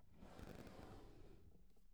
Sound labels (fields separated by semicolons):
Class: drawer; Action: opening